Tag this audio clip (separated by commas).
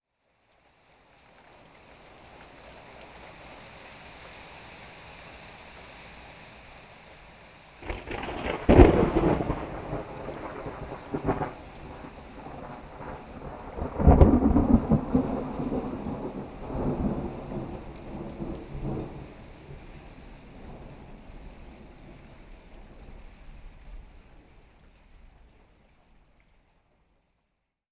Thunderstorm, Thunder